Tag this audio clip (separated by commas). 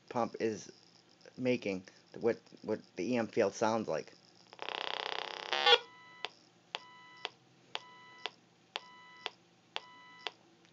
bleep, Speech